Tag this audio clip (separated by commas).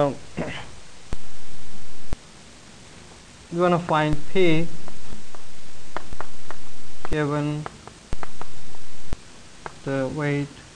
Speech